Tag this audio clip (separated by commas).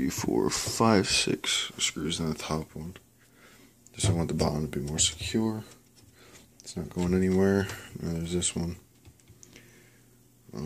Speech, inside a small room